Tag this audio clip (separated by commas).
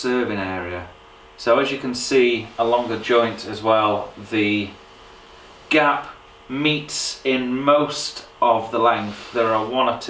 planing timber